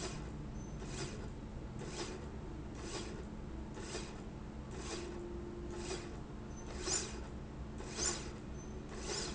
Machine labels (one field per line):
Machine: slide rail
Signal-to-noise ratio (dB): 0 dB